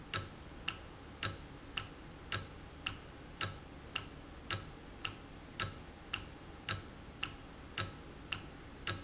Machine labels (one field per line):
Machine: valve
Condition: normal